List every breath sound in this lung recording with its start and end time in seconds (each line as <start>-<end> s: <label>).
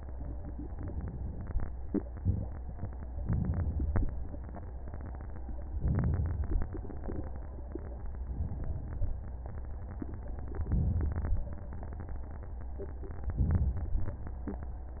3.18-4.04 s: inhalation
5.82-6.67 s: inhalation
8.30-9.10 s: inhalation
10.60-11.39 s: inhalation
13.34-14.14 s: inhalation